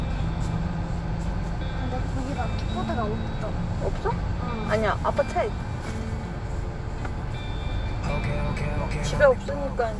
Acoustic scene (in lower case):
car